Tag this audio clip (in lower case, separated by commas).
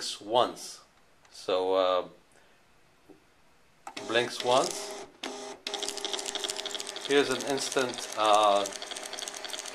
speech, printer